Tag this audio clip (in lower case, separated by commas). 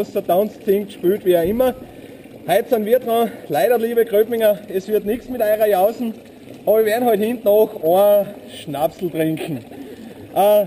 speech, gurgling